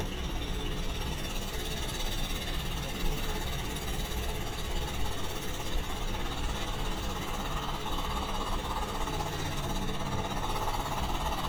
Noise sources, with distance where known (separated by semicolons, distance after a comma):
jackhammer, far